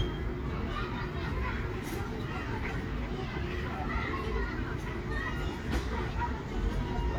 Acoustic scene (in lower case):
residential area